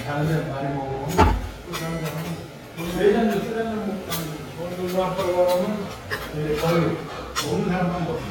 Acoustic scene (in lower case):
restaurant